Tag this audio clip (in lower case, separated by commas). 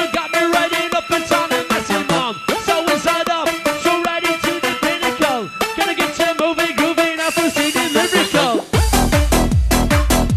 music